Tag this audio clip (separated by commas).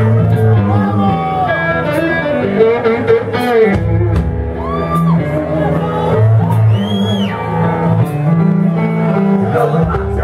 Music, Speech